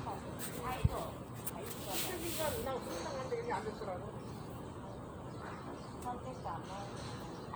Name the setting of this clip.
park